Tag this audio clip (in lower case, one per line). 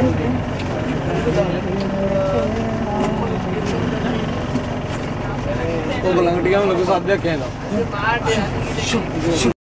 wind